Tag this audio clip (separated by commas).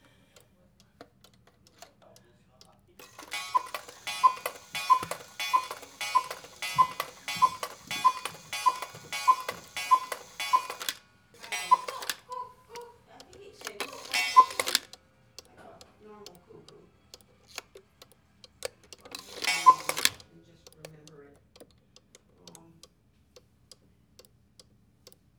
Clock, Mechanisms